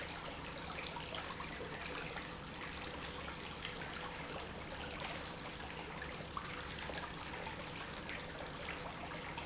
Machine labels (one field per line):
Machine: pump